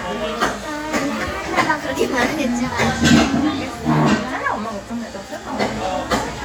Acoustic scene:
cafe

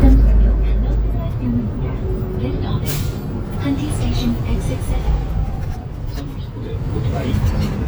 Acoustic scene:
bus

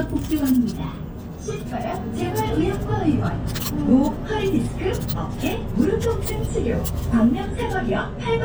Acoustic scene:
bus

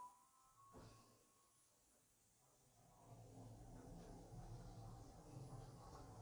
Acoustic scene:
elevator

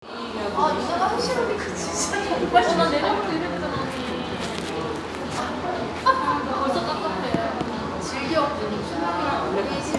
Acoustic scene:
cafe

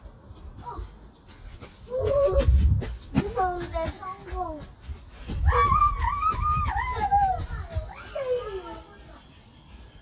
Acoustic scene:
park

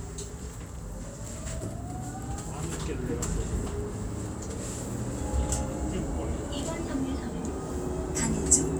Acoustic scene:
bus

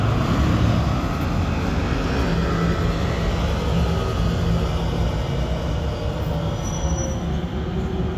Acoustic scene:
residential area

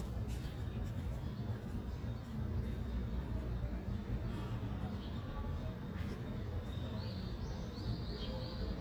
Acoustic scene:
residential area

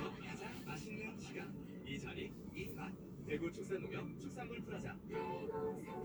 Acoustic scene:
car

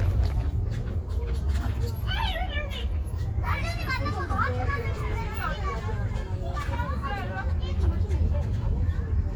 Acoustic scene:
residential area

